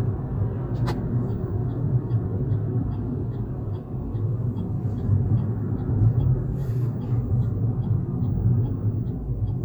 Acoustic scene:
car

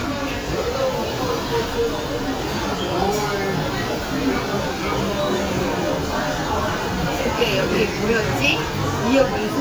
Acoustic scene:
crowded indoor space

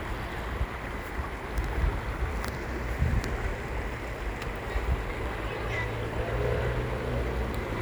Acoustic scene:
park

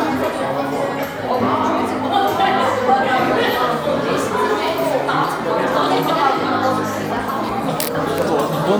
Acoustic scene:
crowded indoor space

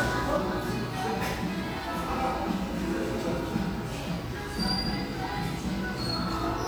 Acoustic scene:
cafe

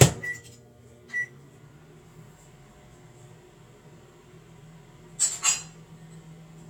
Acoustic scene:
kitchen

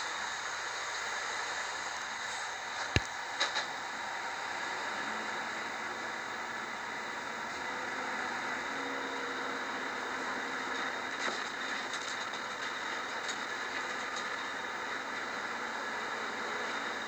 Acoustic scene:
bus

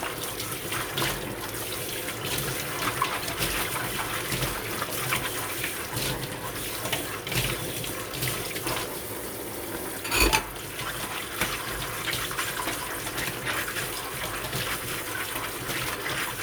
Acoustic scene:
kitchen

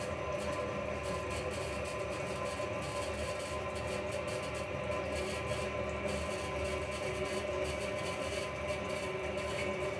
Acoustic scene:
restroom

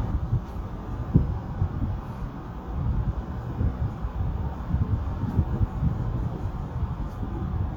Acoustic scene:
elevator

